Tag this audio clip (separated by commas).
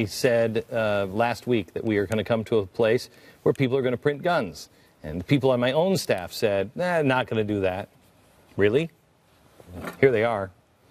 Speech